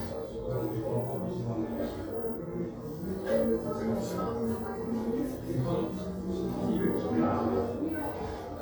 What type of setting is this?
crowded indoor space